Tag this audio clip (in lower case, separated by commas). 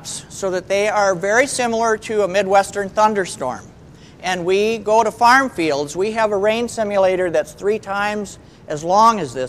speech